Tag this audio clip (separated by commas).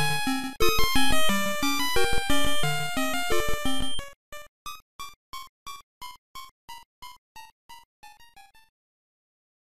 Music, Soundtrack music